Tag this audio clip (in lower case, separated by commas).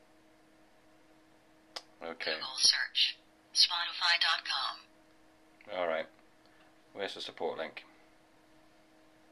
silence, inside a small room, speech